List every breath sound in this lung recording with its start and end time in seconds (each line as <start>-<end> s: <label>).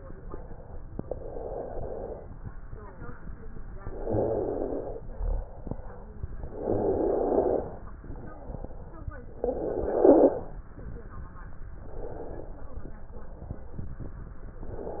1.00-2.24 s: inhalation
3.74-5.10 s: inhalation
3.74-5.10 s: rhonchi
5.05-6.18 s: exhalation
6.43-7.18 s: stridor
6.46-7.82 s: inhalation
7.95-9.16 s: exhalation
9.36-10.58 s: inhalation
9.36-10.58 s: stridor
11.81-13.86 s: exhalation
14.64-15.00 s: inhalation